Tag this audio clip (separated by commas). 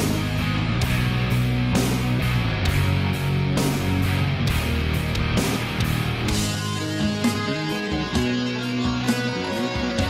Music